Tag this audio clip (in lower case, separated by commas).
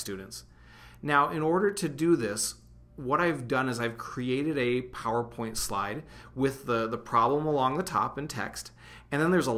speech